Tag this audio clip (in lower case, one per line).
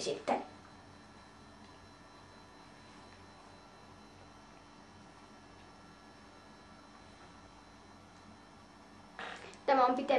speech